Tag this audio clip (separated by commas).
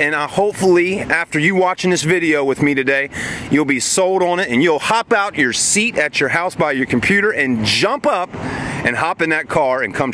Speech